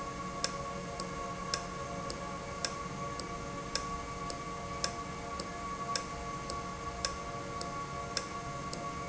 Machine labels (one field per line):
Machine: valve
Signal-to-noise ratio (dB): -6 dB